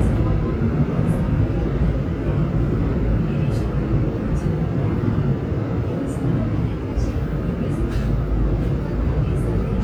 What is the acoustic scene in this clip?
subway train